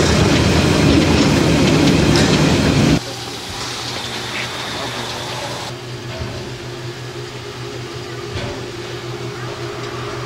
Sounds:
Vehicle, Speech, Train, Rail transport

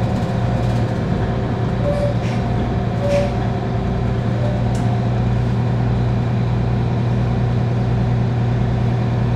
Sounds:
Vehicle

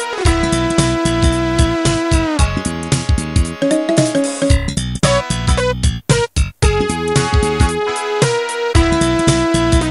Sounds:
Music

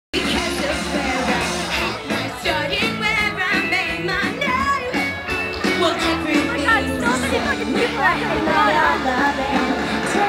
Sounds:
outside, urban or man-made, Singing, Music, Speech

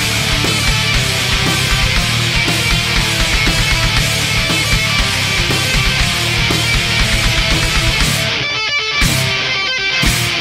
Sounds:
Music, Independent music

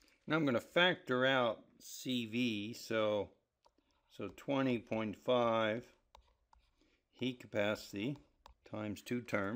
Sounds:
Speech, inside a small room

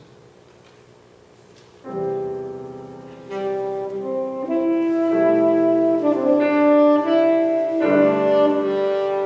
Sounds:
Jazz, Orchestra, Wind instrument, Music, Musical instrument, Saxophone, Piano, Classical music

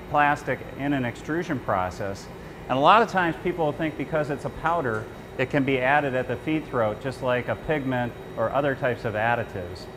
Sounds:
Speech

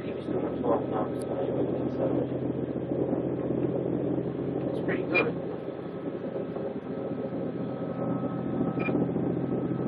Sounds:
speedboat, Wind, Wind noise (microphone), Water vehicle

